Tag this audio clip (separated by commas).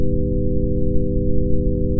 Musical instrument, Organ, Music, Keyboard (musical)